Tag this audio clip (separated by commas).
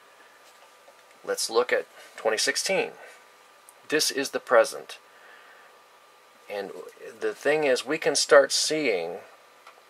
Speech